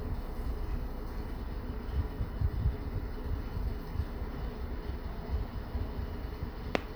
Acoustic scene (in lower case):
elevator